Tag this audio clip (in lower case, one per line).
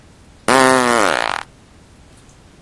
fart